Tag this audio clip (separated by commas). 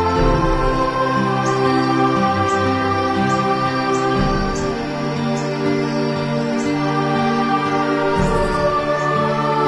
Music